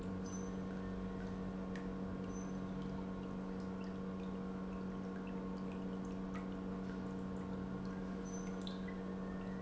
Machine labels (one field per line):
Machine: pump